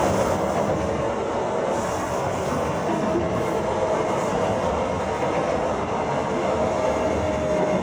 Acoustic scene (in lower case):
subway train